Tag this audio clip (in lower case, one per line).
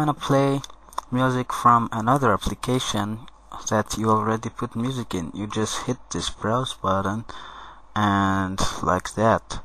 speech